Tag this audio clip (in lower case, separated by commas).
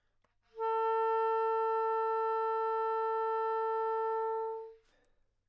music, wind instrument, musical instrument